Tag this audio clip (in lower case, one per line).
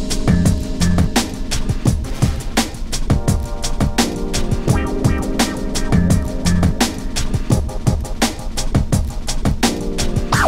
disc scratching